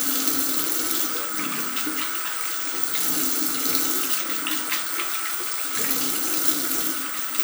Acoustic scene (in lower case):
restroom